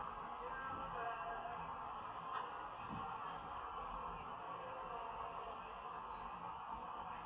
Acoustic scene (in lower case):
park